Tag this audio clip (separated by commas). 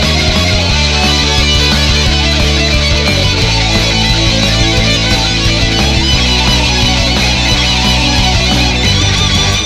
Plucked string instrument, Heavy metal, Guitar, Music, Musical instrument, inside a small room